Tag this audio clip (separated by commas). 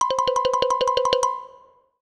Music, xylophone, Percussion, Mallet percussion, Musical instrument